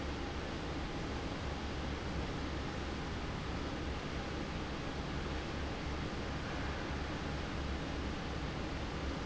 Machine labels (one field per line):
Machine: fan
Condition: abnormal